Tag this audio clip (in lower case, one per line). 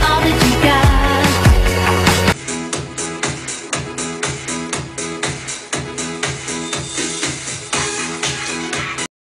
music